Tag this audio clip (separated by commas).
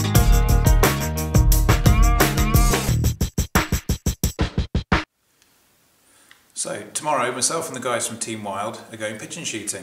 Drum machine